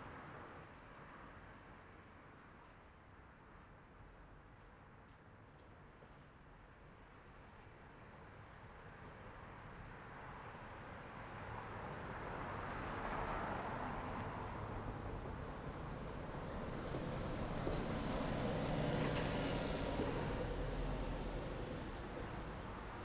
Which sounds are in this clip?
car, bus, car wheels rolling, bus engine idling, bus wheels rolling, bus compressor